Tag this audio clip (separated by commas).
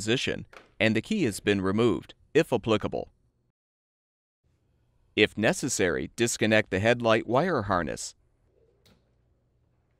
Speech